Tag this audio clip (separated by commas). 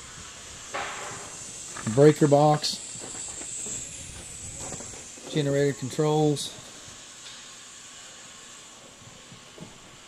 Speech